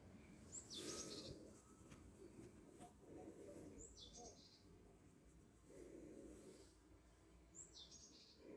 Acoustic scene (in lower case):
park